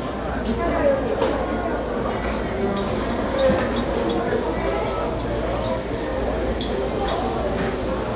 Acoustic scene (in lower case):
restaurant